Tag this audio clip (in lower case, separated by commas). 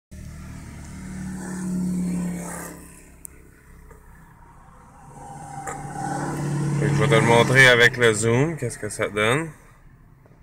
speech, outside, urban or man-made